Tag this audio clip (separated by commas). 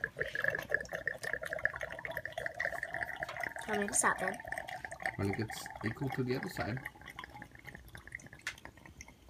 inside a small room, Drip, Speech